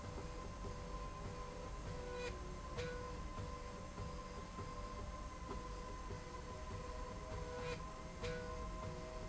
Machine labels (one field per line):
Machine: slide rail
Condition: normal